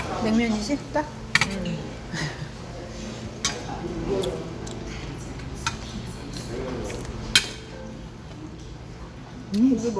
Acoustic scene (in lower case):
restaurant